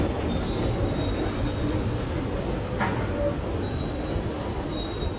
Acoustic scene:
subway station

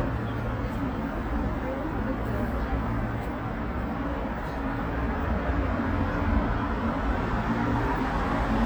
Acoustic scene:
street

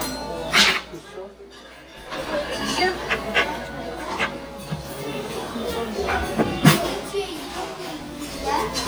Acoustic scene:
restaurant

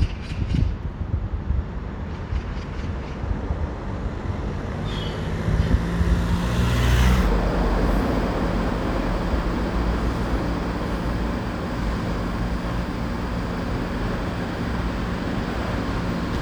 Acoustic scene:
residential area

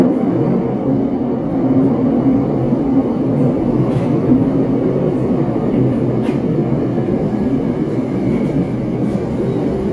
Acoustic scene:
subway train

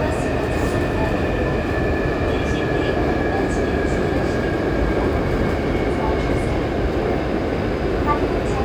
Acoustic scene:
subway train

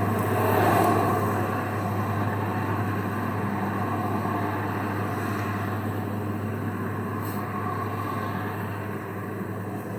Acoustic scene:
street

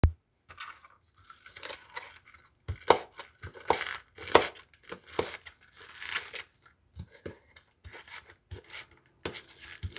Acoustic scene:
kitchen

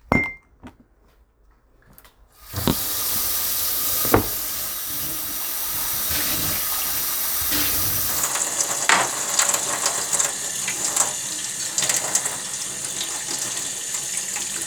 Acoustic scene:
kitchen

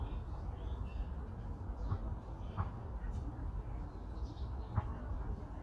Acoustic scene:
park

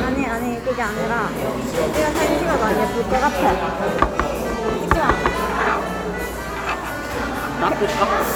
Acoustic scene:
cafe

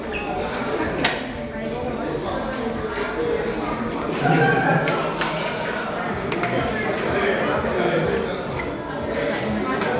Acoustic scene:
restaurant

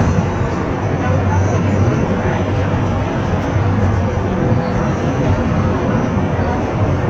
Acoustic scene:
bus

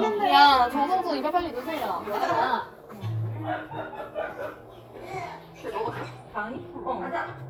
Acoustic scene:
crowded indoor space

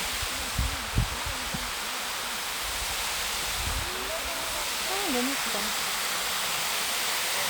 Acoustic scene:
park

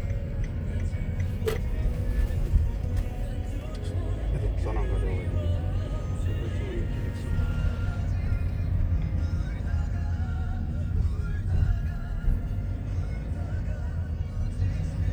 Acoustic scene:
car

